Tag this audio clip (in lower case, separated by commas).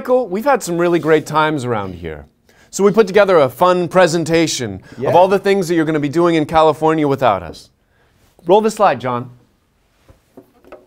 speech